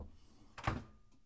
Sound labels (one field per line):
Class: drawer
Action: closing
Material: wooden